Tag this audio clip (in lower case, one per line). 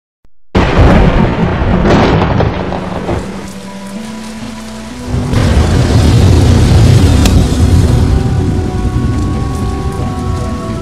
explosion
music